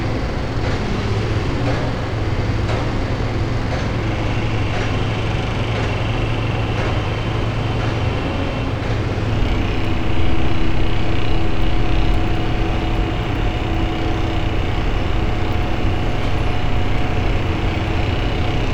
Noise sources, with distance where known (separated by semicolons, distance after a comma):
unidentified impact machinery